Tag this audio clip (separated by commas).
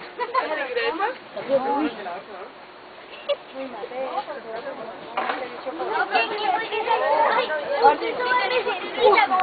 Speech, outside, rural or natural